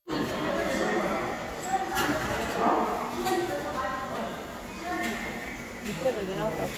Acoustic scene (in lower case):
subway station